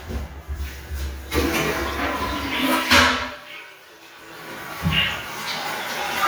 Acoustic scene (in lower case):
restroom